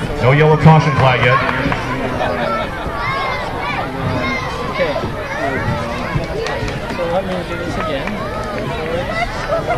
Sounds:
inside a public space, speech

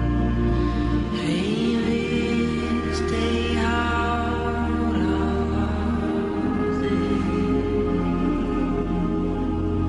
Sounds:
music

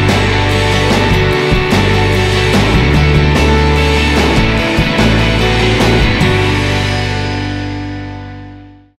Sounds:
music, background music

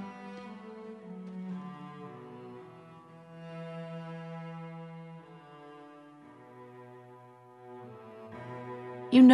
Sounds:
music, speech, cello

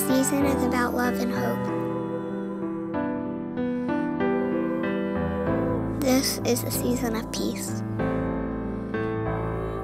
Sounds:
speech, music

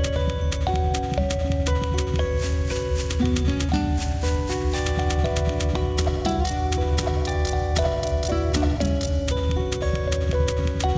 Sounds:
music

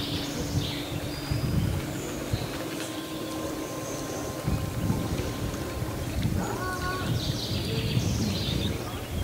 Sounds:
environmental noise, vehicle, water vehicle

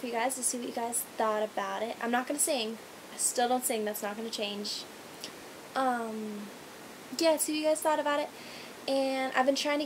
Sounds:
speech

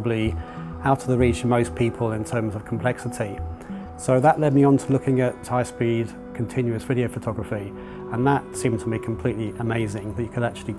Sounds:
music, speech

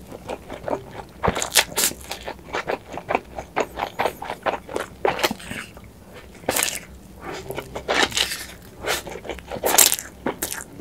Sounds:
people eating noodle

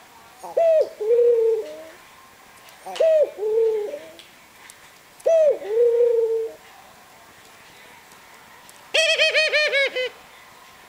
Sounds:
animal, bird, coo

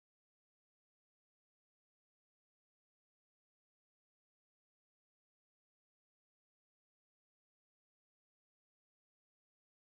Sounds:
silence

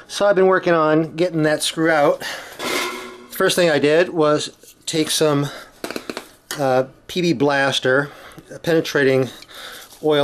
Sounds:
speech, inside a small room

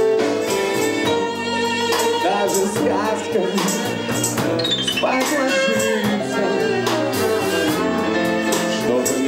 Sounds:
music, flamenco

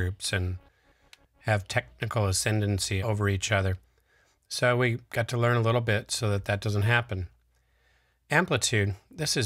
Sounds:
speech

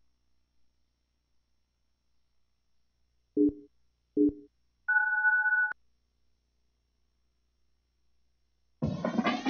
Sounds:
music, silence

